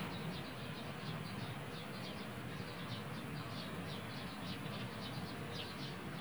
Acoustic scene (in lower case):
park